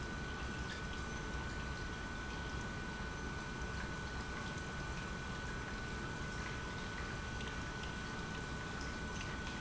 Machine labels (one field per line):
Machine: pump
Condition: normal